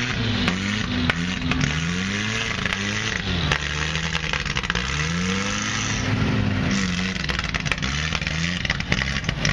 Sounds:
Vehicle, Truck, outside, rural or natural

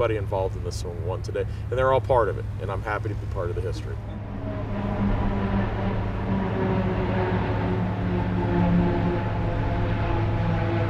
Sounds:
Speech

